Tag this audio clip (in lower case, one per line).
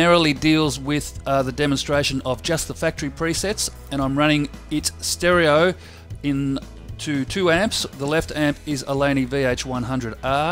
music
bass guitar
speech